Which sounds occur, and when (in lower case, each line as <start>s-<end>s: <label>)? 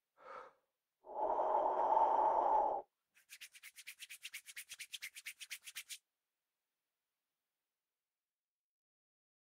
0.1s-0.6s: breathing
1.0s-2.9s: breathing
3.1s-6.0s: rub